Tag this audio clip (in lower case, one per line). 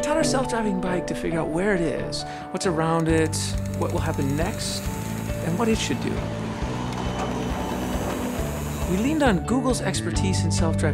bicycle
speech
music
vehicle